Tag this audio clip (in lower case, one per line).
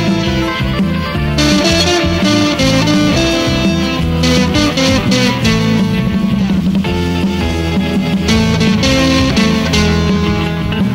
music
electric guitar
musical instrument
plucked string instrument